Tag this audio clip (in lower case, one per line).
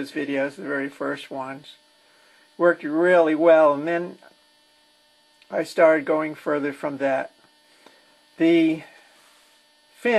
speech